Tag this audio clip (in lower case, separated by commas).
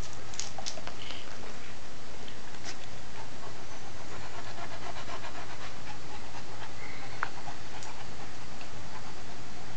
animal, domestic animals